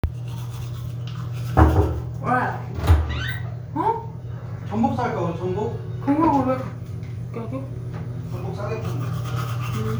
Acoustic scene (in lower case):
restroom